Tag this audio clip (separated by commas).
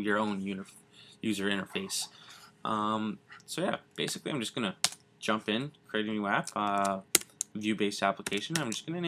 Speech